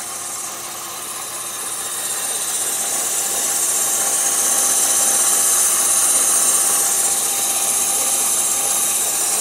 An engine is idling and hissing